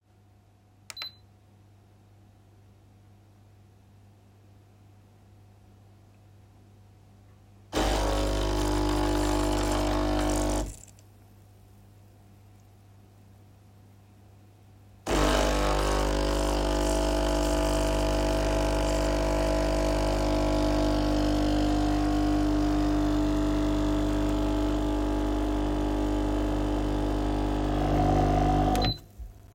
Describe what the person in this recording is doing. I turned on the coffee machine and recorded it brewing a cup of coffee.